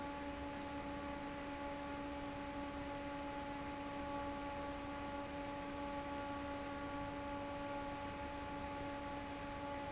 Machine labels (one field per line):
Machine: fan